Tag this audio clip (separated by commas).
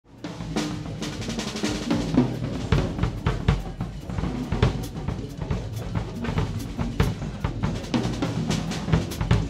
Music, Drum, Drum kit, Musical instrument, Cymbal, Bass drum, Rimshot